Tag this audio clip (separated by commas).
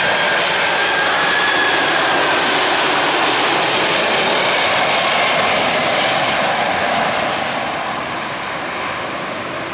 outside, urban or man-made, Aircraft, Vehicle